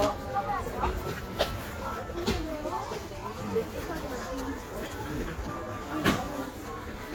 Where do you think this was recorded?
in a crowded indoor space